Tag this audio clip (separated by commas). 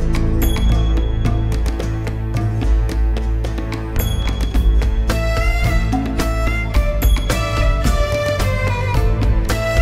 Music